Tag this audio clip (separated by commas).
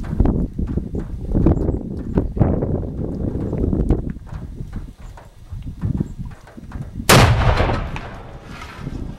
outside, rural or natural